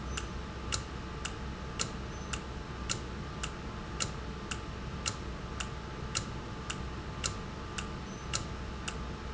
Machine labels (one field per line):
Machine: valve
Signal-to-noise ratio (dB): -6 dB